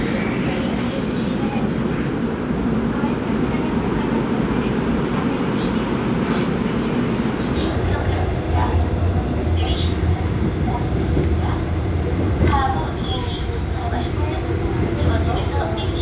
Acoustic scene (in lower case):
subway train